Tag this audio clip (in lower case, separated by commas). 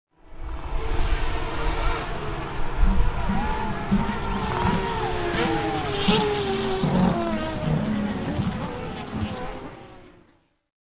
motor vehicle (road), vehicle, race car, car